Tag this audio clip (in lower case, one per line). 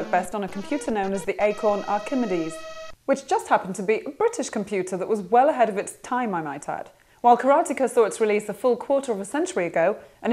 speech
music